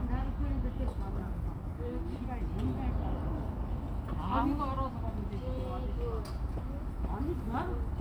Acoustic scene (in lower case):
park